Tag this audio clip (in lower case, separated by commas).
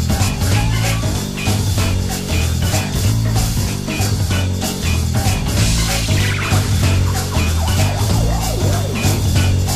music